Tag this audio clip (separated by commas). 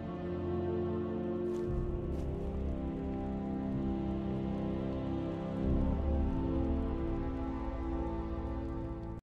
Music